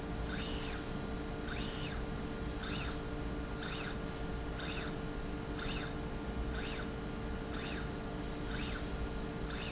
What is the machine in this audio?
slide rail